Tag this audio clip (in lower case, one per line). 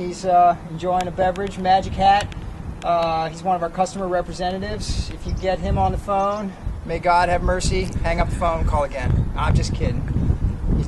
speech